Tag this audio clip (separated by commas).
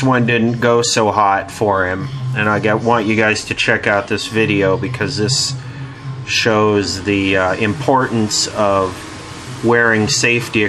Speech